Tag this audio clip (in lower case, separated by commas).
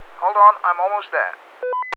human voice, speech, male speech